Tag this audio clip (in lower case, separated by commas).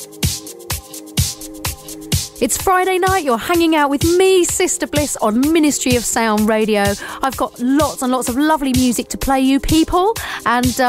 speech, music, house music